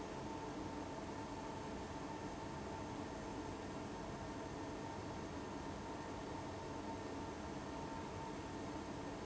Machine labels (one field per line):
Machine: fan